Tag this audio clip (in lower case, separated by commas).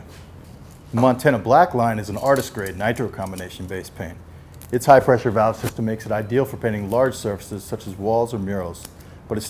speech, spray